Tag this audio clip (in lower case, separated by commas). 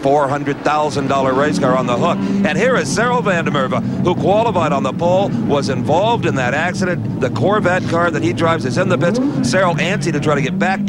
speech